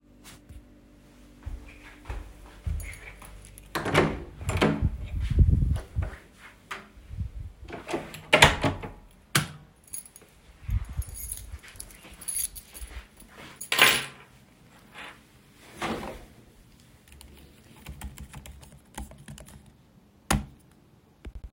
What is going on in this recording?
I walked toward the office door and entered the room. I turned on the light, handled my keys, and typed briefly on the keyboard.